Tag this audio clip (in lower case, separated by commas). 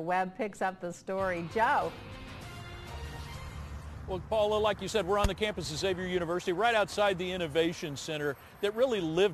speech, music